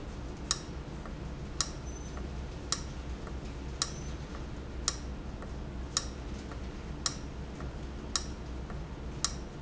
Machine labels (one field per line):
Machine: valve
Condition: abnormal